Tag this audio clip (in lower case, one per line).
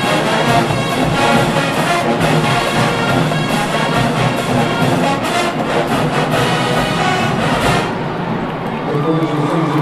people marching